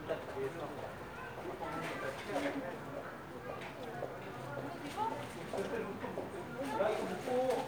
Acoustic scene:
residential area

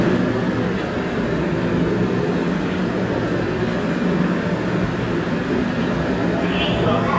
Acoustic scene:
subway station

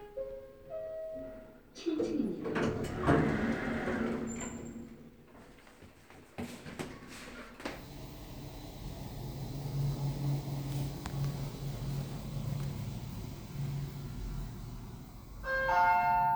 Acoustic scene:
elevator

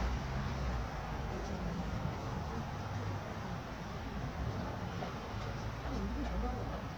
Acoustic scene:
residential area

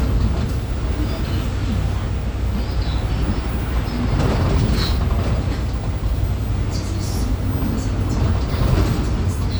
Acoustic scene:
bus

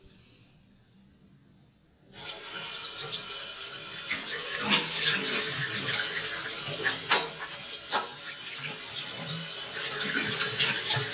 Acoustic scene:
restroom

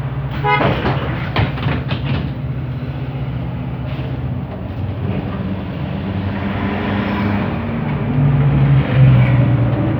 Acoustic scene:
bus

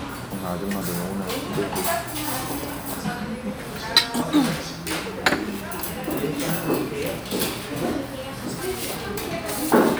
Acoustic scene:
crowded indoor space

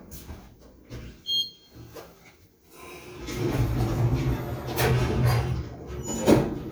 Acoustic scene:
elevator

